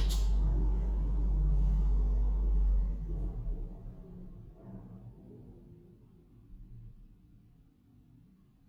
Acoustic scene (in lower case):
elevator